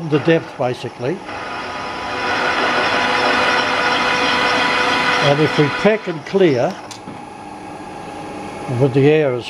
A man speaks over a running machine